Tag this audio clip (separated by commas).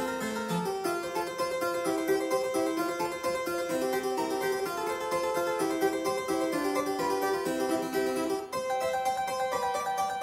playing harpsichord